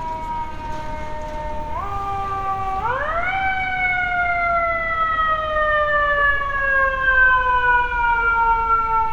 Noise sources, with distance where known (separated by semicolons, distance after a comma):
siren, near